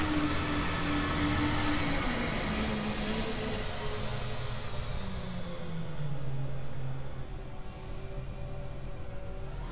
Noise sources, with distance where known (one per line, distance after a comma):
large-sounding engine, near